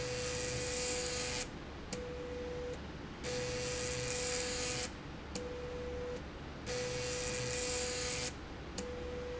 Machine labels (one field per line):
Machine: slide rail